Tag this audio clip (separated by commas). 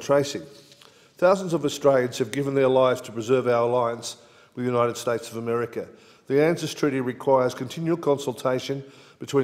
monologue, Speech, man speaking